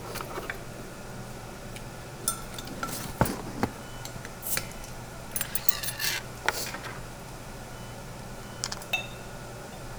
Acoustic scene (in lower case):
restaurant